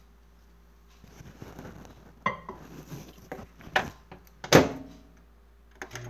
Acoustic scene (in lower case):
kitchen